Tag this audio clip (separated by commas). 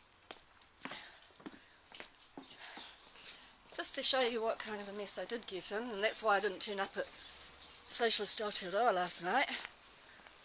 Speech